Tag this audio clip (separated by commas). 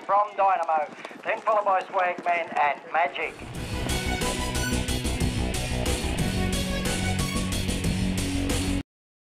Music, Animal, Speech, Clip-clop